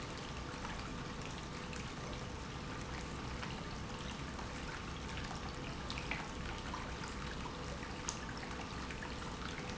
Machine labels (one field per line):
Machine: pump